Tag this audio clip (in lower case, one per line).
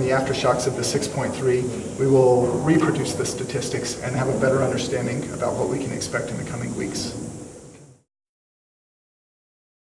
speech